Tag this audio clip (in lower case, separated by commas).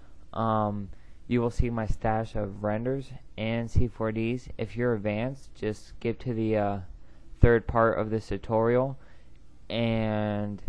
speech